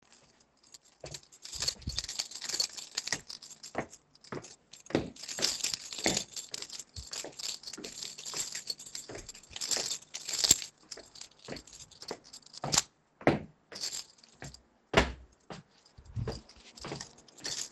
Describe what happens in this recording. I walked towards the stairs and then went downstairs. While I did that I had my keys in my hand.